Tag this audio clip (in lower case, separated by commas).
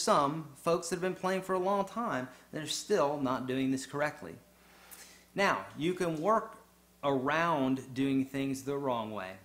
speech